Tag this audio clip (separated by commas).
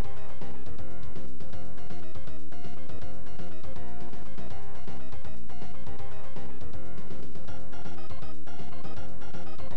Rock and roll, Progressive rock, Music